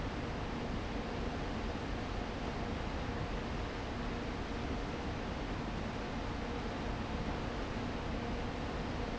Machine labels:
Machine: fan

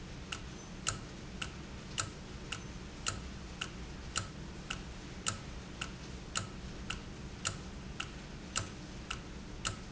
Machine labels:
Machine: valve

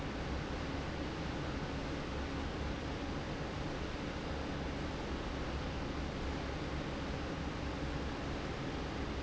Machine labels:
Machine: fan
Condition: normal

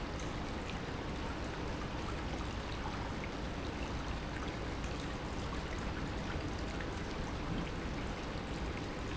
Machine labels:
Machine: pump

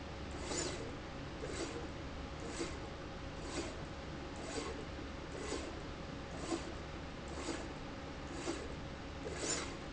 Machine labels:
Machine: slide rail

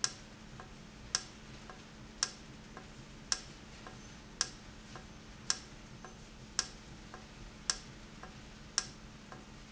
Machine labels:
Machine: valve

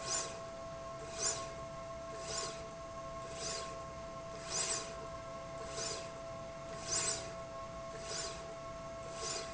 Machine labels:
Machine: slide rail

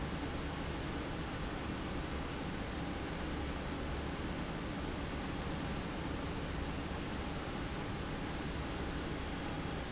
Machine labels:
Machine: pump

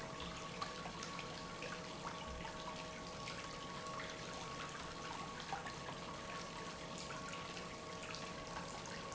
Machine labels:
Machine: pump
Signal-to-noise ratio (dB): 6 dB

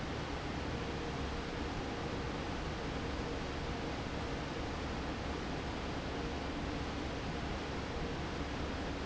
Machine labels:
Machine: fan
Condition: normal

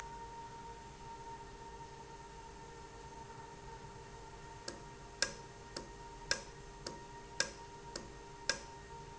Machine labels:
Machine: valve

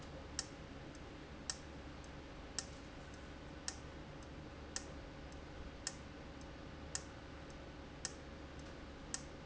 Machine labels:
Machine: valve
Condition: abnormal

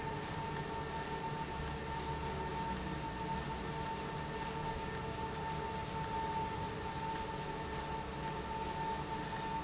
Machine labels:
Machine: valve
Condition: abnormal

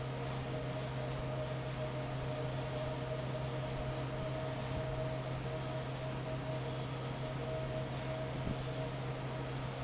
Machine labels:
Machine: fan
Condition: normal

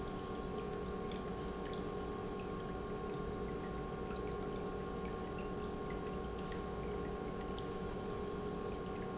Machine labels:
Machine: pump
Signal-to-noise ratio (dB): 0 dB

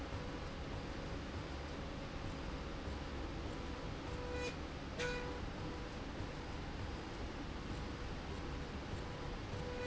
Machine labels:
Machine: slide rail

